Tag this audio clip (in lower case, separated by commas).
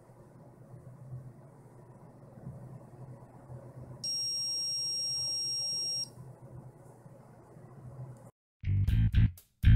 smoke detector